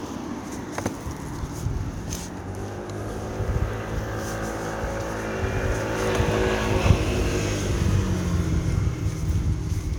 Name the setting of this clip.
residential area